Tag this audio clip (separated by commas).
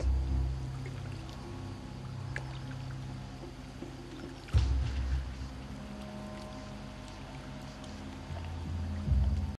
Music, Stream